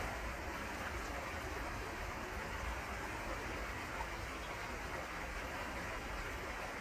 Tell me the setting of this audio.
park